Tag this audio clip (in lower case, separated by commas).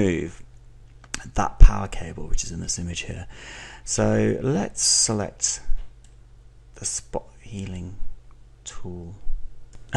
speech